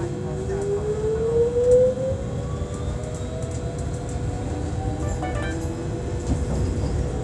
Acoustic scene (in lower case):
subway train